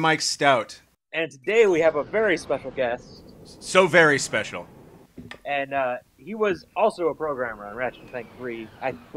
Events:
[0.00, 0.80] male speech
[0.00, 0.91] background noise
[1.09, 9.15] background noise
[1.10, 3.27] male speech
[3.45, 4.63] male speech
[5.30, 5.36] tick
[5.43, 5.99] male speech
[6.20, 9.15] male speech
[7.28, 9.15] jet engine

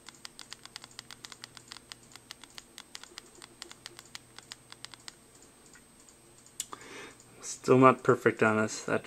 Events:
[0.00, 9.05] mechanisms
[3.57, 5.13] typing
[6.66, 7.14] breathing
[7.05, 7.22] clicking
[7.37, 9.05] male speech

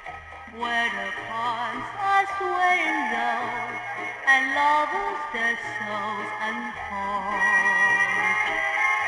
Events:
[0.00, 9.05] music
[4.26, 9.05] singing

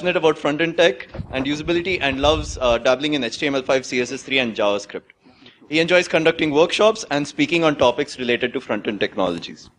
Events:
[0.00, 9.75] background noise
[0.01, 5.05] male speech
[0.98, 1.52] generic impact sounds
[5.03, 5.09] tick
[5.15, 5.61] breathing
[5.65, 9.71] male speech

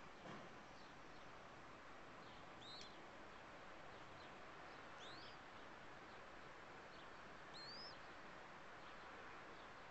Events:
[0.00, 9.90] wind
[0.02, 0.33] bird call
[0.19, 0.56] thump
[0.69, 1.24] bird call
[2.14, 2.43] bird call
[2.60, 2.99] bird call
[2.76, 2.87] tick
[3.84, 4.29] bird call
[4.61, 5.59] bird call
[6.01, 6.49] bird call
[6.92, 7.14] bird call
[7.48, 8.02] bird call
[8.76, 9.17] bird call
[9.49, 9.90] bird call

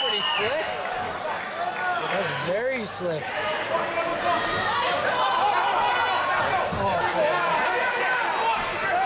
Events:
[0.00, 0.53] whistling
[0.00, 0.55] male speech
[0.00, 9.05] background noise
[0.38, 9.05] hubbub
[1.40, 2.00] shout
[1.48, 1.52] tick
[2.14, 3.27] male speech
[6.73, 6.93] thud
[6.77, 7.43] male speech

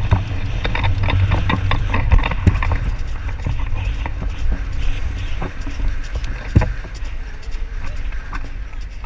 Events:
[0.00, 9.05] clip-clop
[0.00, 9.05] wind
[0.08, 0.21] generic impact sounds
[0.57, 2.75] generic impact sounds
[3.10, 4.27] generic impact sounds
[4.48, 4.59] generic impact sounds
[5.36, 6.91] generic impact sounds
[7.00, 8.06] human sounds
[8.25, 8.42] generic impact sounds
[8.55, 8.88] human sounds

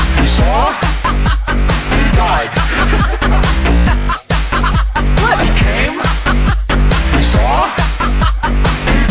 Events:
[0.00, 9.10] music
[0.12, 0.94] male speech
[2.04, 2.51] male speech
[5.07, 6.14] male speech
[7.04, 7.96] male speech

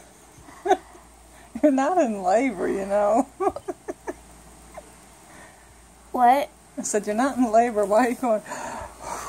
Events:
[0.01, 9.25] background noise
[0.43, 0.94] laughter
[1.58, 3.26] woman speaking
[3.42, 4.27] laughter
[6.13, 6.53] woman speaking
[6.81, 8.47] woman speaking
[8.52, 8.96] breathing
[9.06, 9.25] breathing

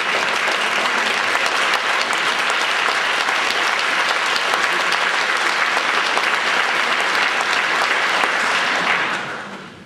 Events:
[0.00, 9.16] applause
[0.00, 9.85] background noise

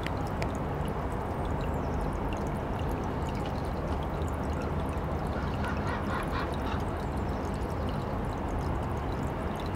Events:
[0.00, 0.58] trickle
[0.00, 9.75] background noise
[0.79, 9.75] trickle
[5.34, 5.47] crow
[5.58, 5.76] crow
[5.88, 6.02] crow
[6.12, 6.25] crow
[6.35, 6.48] crow
[6.66, 6.79] crow

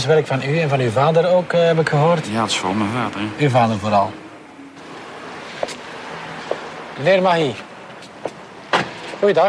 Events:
[0.00, 4.07] man speaking
[0.00, 9.45] conversation
[0.00, 9.45] motor vehicle (road)
[5.57, 5.75] generic impact sounds
[6.42, 6.58] generic impact sounds
[6.94, 7.62] man speaking
[7.20, 7.48] surface contact
[7.51, 7.62] walk
[7.94, 8.07] surface contact
[8.19, 8.32] walk
[8.70, 8.90] generic impact sounds
[9.11, 9.45] man speaking

